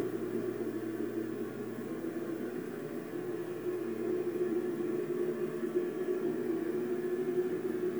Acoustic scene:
subway train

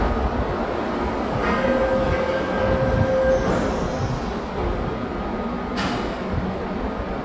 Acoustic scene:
subway station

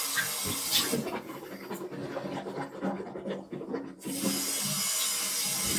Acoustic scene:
restroom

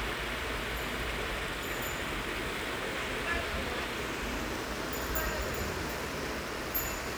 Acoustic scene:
park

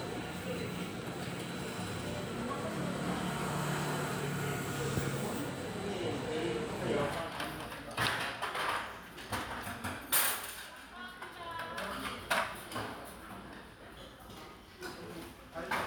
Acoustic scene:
restaurant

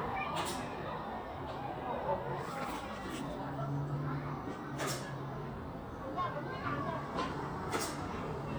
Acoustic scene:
residential area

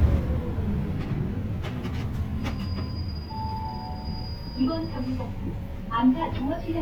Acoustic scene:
bus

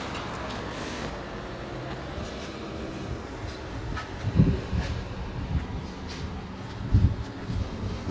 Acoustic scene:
residential area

